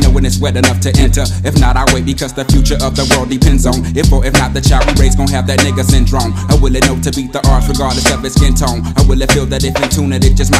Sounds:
Rapping

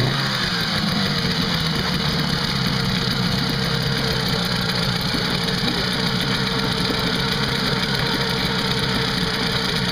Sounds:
speedboat, Vehicle

